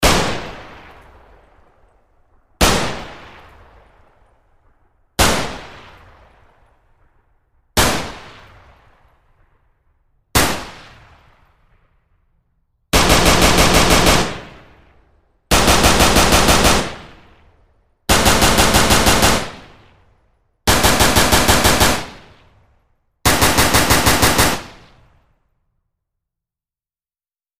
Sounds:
Gunshot, Explosion

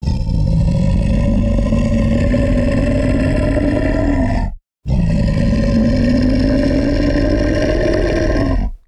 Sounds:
Animal

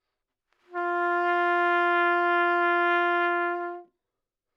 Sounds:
Trumpet, Musical instrument, Brass instrument, Music

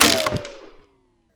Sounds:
gunfire, Explosion

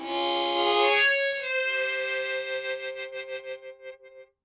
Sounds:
Harmonica, Music, Musical instrument

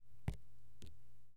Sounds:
Water, Drip, Rain, Raindrop, Liquid

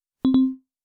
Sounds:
Alarm, Telephone, Ringtone

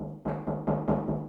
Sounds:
Knock, Door, home sounds

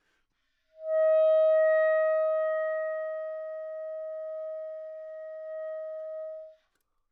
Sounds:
Musical instrument, woodwind instrument, Music

